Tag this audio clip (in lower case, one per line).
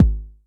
percussion
music
drum
bass drum
musical instrument